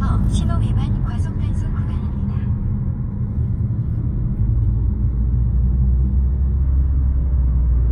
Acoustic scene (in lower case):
car